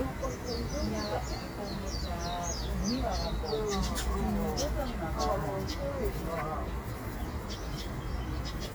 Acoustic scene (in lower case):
park